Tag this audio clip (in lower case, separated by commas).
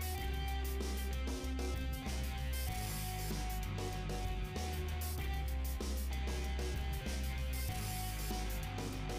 music